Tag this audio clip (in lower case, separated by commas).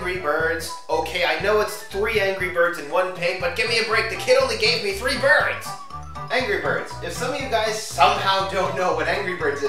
music, speech